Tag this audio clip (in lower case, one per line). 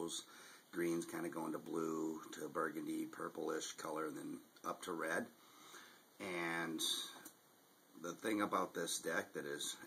speech